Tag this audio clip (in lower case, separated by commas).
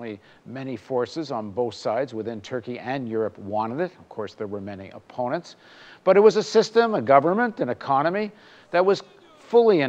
speech